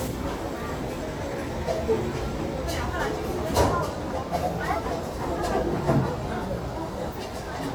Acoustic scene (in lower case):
restaurant